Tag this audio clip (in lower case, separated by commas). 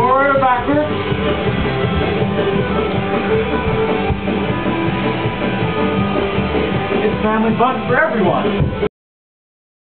speech, music